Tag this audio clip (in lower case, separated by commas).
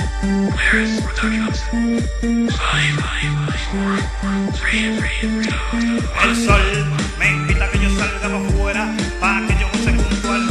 electronic music, music, techno